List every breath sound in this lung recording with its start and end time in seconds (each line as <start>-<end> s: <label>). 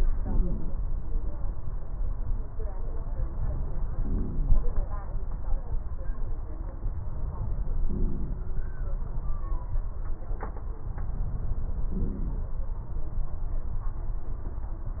0.19-0.72 s: inhalation
0.19-0.72 s: wheeze
3.90-4.82 s: inhalation
3.90-4.82 s: wheeze
7.86-8.42 s: inhalation
11.94-12.49 s: inhalation
11.94-12.49 s: wheeze